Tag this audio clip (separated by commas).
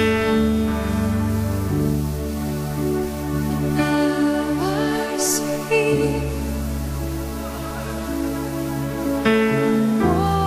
Music, Singing